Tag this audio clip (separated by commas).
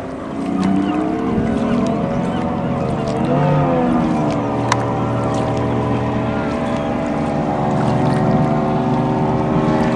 Domestic animals, Animal, Caterwaul